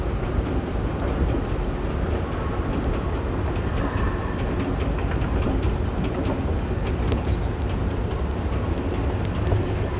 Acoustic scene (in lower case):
subway station